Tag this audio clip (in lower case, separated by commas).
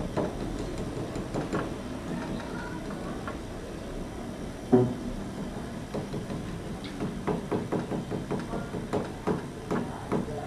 thwack, speech